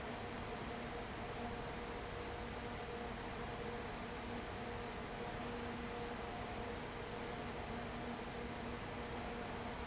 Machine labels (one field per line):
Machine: fan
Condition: abnormal